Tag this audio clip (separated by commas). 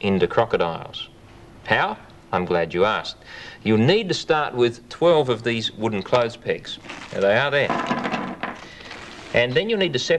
Speech, Wood, inside a small room